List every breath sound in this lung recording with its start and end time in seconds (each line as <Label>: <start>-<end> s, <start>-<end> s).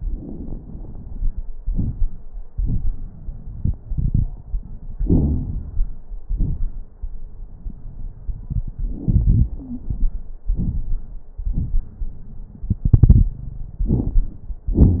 Inhalation: 0.00-1.55 s, 8.67-10.38 s
Exhalation: 1.58-2.22 s, 10.50-11.35 s
Wheeze: 9.60-9.87 s
Crackles: 0.00-1.55 s, 1.58-2.22 s, 10.50-11.35 s